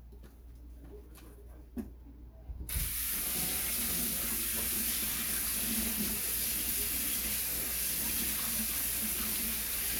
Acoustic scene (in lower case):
kitchen